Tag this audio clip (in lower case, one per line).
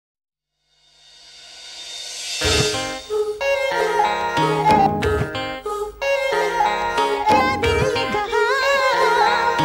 music